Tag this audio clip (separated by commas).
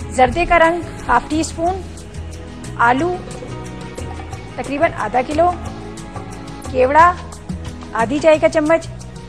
Speech, Music